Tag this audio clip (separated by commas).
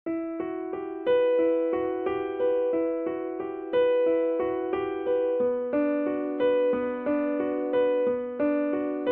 Music, Electric piano